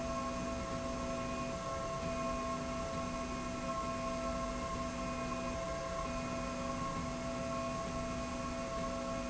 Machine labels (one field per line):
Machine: slide rail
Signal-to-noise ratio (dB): -6 dB